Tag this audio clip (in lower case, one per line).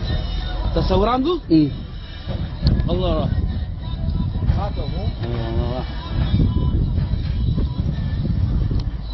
speech